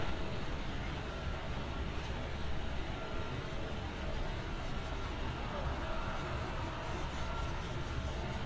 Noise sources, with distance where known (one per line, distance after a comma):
reverse beeper, far